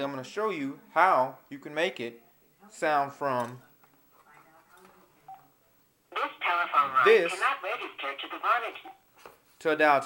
Male speaking while automated telephone operator speaks